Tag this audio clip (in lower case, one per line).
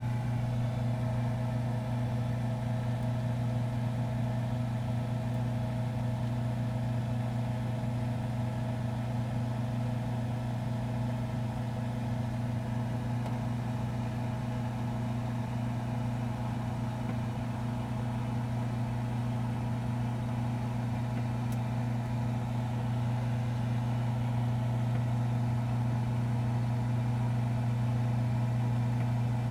engine